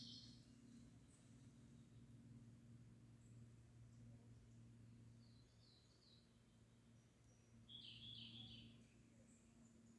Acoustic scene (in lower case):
park